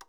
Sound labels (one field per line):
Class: switch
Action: being turned on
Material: plastic